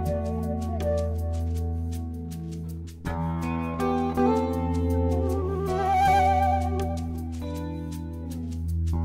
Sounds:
music, jazz, wind instrument, saxophone, musical instrument, flute

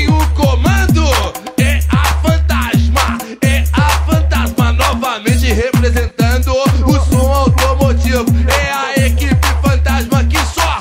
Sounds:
music

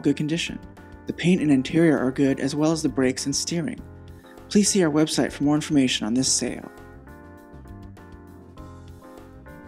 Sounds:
music, speech

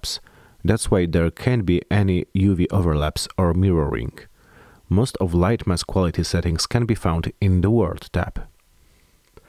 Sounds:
speech

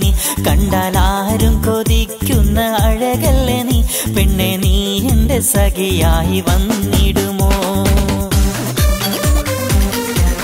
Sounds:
music, dance music

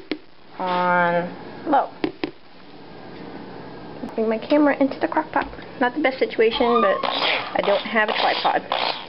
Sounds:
speech

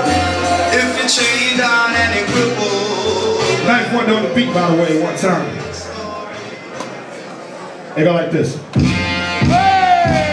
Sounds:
music, speech

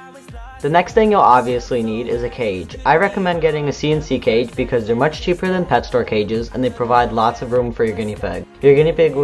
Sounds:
music, speech

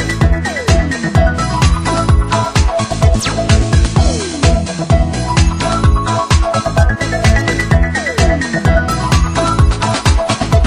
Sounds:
music, video game music

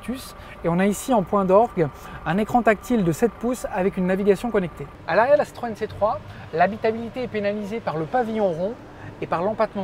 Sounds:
speech

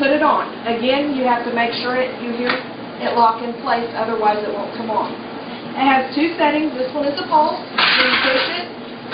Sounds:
inside a small room, speech

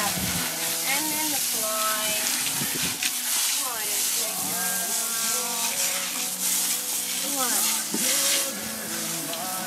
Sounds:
speech, outside, rural or natural, music

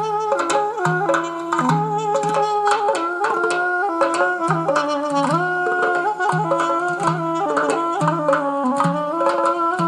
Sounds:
music, middle eastern music

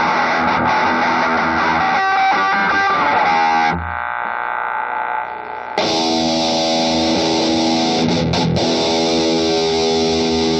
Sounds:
musical instrument, music, plucked string instrument, effects unit, guitar

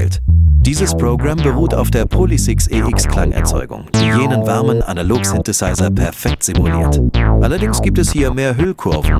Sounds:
electric piano, piano, musical instrument, music, speech, keyboard (musical)

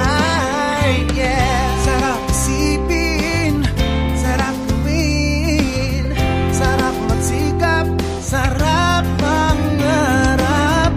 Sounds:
dance music, music, rhythm and blues, background music

